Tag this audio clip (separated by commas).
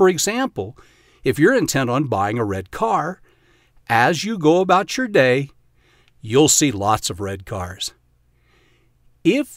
Speech